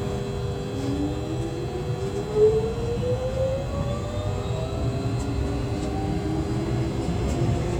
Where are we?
on a subway train